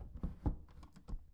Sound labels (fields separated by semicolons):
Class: door; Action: closing